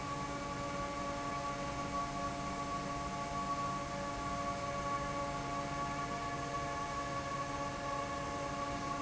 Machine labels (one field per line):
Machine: fan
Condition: normal